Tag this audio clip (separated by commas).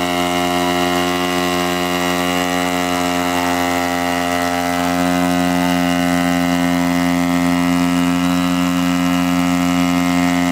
Engine